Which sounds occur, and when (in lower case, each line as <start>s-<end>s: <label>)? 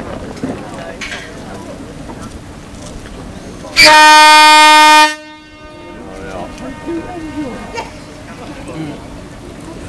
0.0s-9.8s: water vehicle
0.0s-9.8s: stream
0.0s-9.8s: wind
0.3s-0.5s: generic impact sounds
0.5s-0.9s: man speaking
0.9s-1.2s: generic impact sounds
1.4s-1.8s: human voice
2.0s-2.3s: generic impact sounds
2.7s-2.9s: generic impact sounds
3.0s-3.1s: generic impact sounds
3.3s-3.7s: mechanisms
3.7s-5.1s: foghorn
5.1s-7.8s: echo
6.0s-6.5s: man speaking
6.5s-6.5s: generic impact sounds
6.5s-7.6s: human voice
7.7s-7.8s: generic impact sounds
8.6s-9.0s: human voice